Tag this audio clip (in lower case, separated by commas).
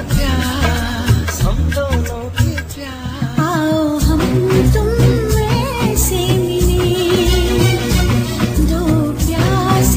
music, music of bollywood